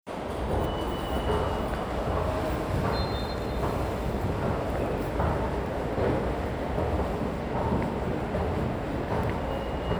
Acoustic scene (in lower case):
subway station